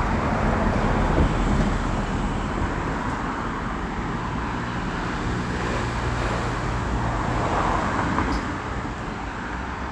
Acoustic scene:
street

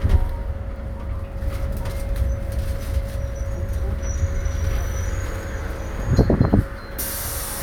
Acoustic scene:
bus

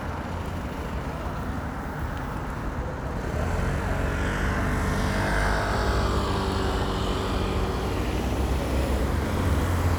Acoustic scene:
street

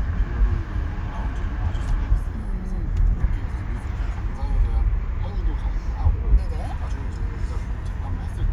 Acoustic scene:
car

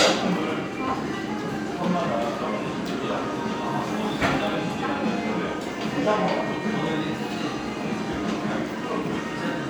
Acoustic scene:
restaurant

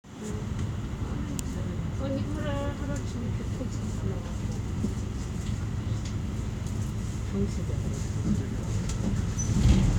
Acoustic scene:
bus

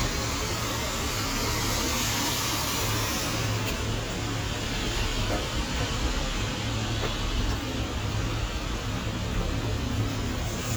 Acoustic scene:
street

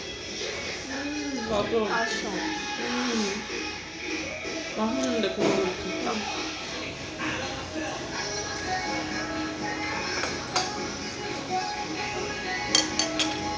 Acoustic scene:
restaurant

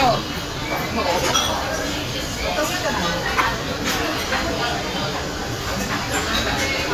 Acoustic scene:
crowded indoor space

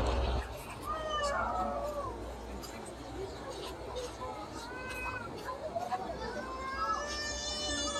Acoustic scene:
park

